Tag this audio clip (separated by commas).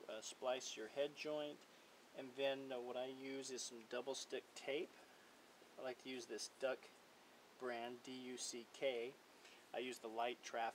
Speech